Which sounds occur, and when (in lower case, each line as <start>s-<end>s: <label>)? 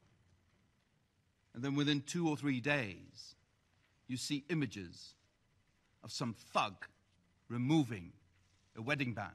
0.0s-9.3s: mechanisms
1.5s-3.3s: man speaking
3.7s-3.9s: surface contact
4.1s-5.1s: man speaking
6.0s-6.9s: man speaking
7.0s-7.1s: surface contact
7.5s-8.2s: man speaking
8.3s-8.7s: surface contact
8.7s-9.3s: man speaking